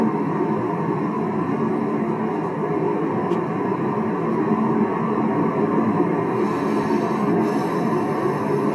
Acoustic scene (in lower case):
car